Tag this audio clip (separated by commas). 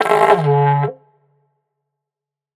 Musical instrument, Music